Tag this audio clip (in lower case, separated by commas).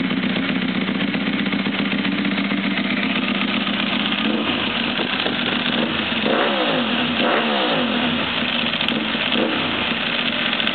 motorcycle, vehicle, outside, urban or man-made